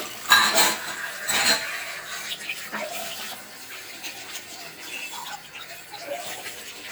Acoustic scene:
kitchen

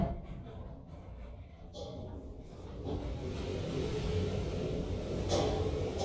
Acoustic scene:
elevator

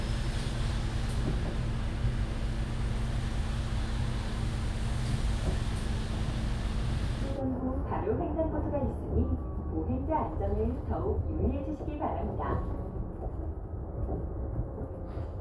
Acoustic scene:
bus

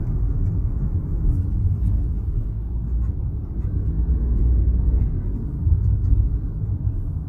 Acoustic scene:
car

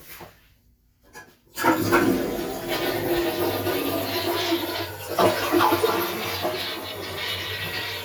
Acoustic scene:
restroom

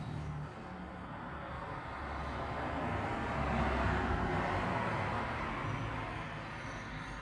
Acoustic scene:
street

